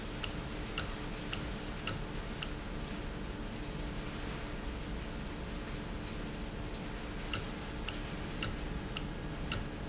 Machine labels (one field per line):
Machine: valve